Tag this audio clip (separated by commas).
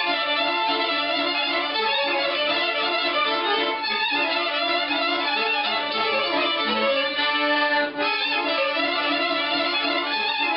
fiddle, Music, Musical instrument